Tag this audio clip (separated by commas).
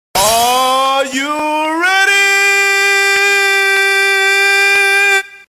Speech, Music